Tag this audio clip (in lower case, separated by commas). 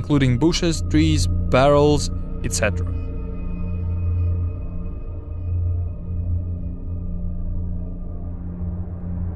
music, speech